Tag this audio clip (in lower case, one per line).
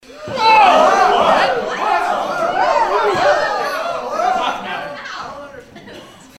human group actions
crowd